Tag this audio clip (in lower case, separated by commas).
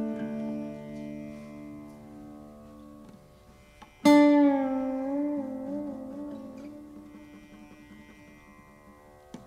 pizzicato